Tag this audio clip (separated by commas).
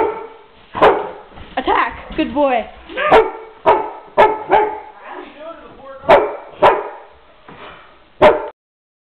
Speech, canids, Animal, Dog, Bark, Domestic animals